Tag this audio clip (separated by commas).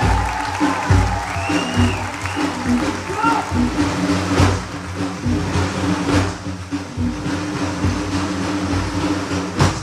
Music, Percussion